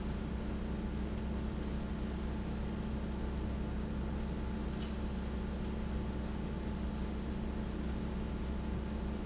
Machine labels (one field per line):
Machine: fan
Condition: abnormal